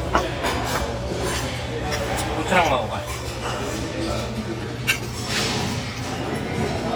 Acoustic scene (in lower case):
restaurant